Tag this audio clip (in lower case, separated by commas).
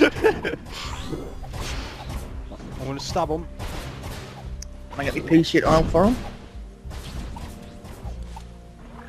speech